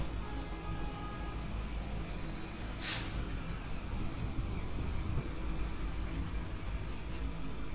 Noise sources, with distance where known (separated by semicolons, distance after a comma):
large-sounding engine, far; car horn, far